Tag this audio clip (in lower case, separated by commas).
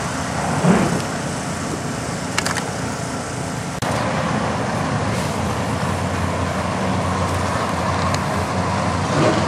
outside, rural or natural, car, vehicle, traffic noise